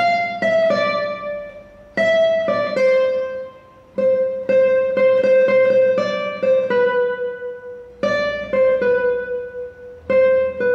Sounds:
music
musical instrument
plucked string instrument
guitar

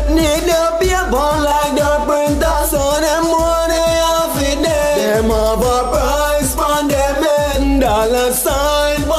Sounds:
music

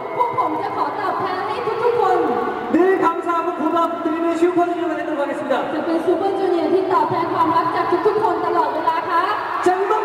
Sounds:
speech

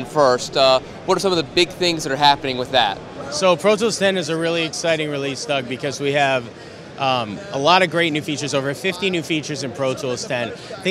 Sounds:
speech

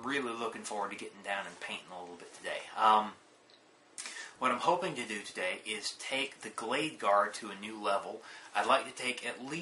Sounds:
speech

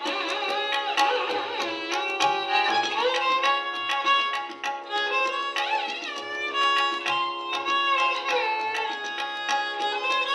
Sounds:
music
musical instrument
fiddle

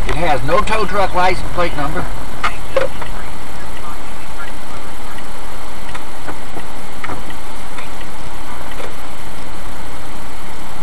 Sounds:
outside, urban or man-made
vehicle
speech

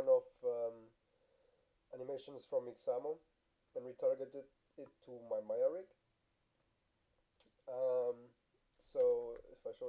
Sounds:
speech

